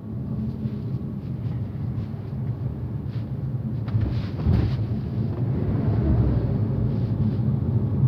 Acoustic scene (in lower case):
car